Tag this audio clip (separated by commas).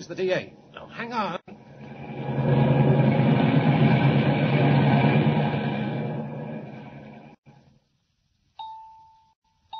Speech